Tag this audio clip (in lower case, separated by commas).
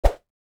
swoosh